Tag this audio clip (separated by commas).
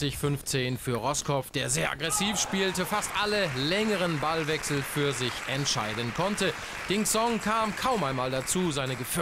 Speech